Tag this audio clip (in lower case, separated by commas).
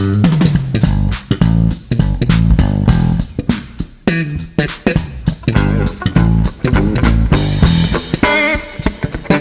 music, psychedelic rock, ska